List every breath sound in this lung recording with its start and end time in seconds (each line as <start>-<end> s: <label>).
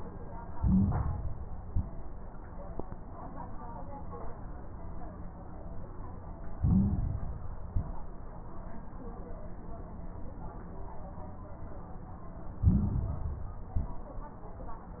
0.49-1.55 s: inhalation
0.49-1.55 s: crackles
1.59-2.07 s: exhalation
1.59-2.07 s: crackles
6.55-7.62 s: inhalation
6.55-7.62 s: crackles
7.66-8.13 s: exhalation
7.66-8.13 s: crackles
12.56-13.62 s: inhalation
12.56-13.62 s: crackles
13.70-14.17 s: exhalation
13.70-14.17 s: crackles